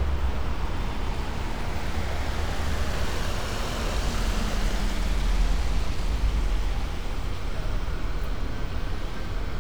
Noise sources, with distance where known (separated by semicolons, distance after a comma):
medium-sounding engine; siren, far